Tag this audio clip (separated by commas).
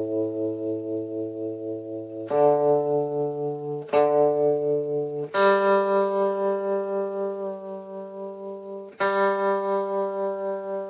Music, Musical instrument